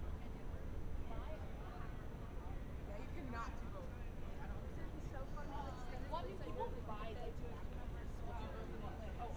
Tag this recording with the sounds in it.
person or small group talking